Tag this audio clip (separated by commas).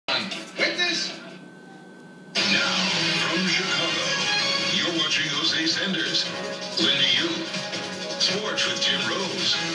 Music, Speech